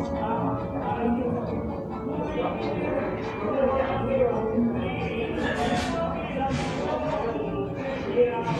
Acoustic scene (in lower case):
cafe